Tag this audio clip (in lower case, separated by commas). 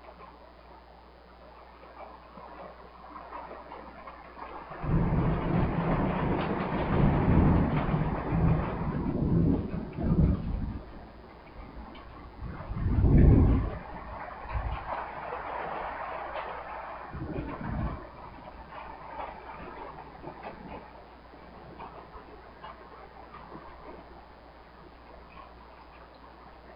thunder, thunderstorm